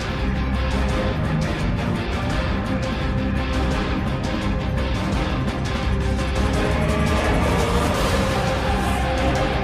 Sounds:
exciting music, music

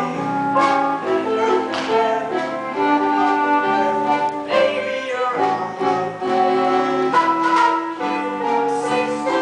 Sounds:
music, tender music

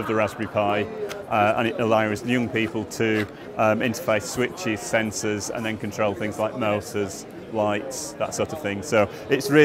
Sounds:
speech

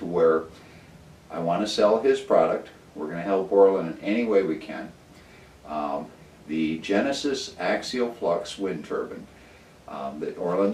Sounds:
speech

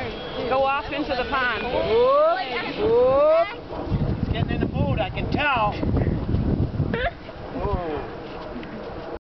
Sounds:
speech

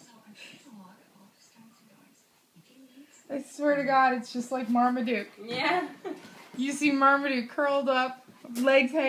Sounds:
speech

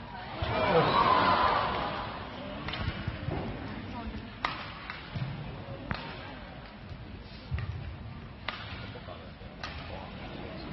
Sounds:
playing badminton

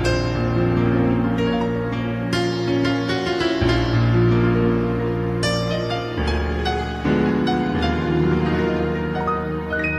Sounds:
tender music, music

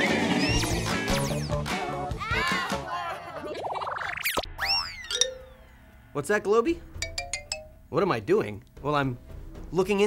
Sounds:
music, speech

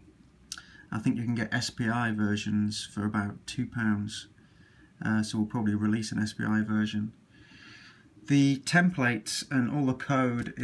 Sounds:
speech

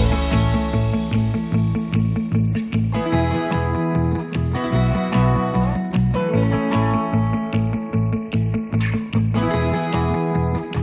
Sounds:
music, blues

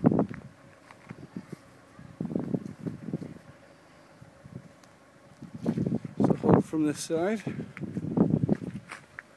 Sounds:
speech

